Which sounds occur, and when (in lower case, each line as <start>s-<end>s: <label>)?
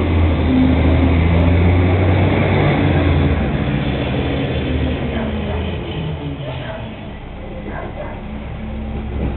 0.0s-9.3s: truck